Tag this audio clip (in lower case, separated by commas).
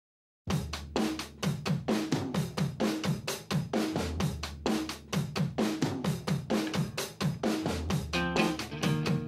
percussion, rimshot, bass drum, snare drum, drum kit, drum